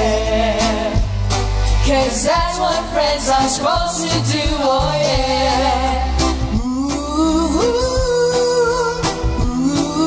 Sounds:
Singing, Music

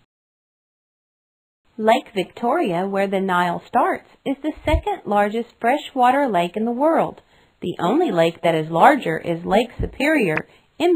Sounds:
Speech

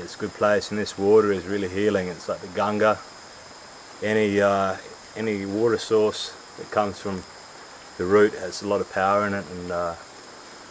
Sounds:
Speech

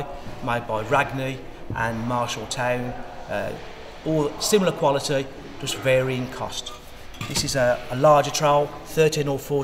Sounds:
Speech

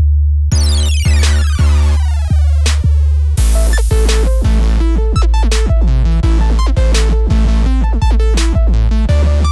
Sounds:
Music

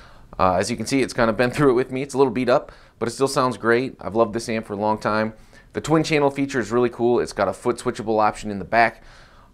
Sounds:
Speech

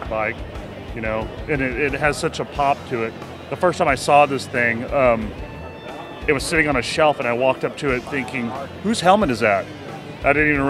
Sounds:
Speech, Music

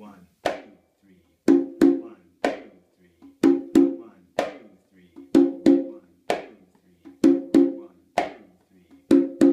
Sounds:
playing congas

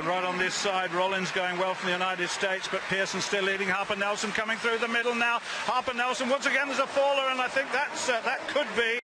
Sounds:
Speech

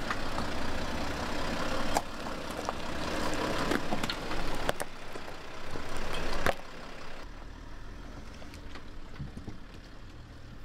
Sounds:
Vehicle, Car

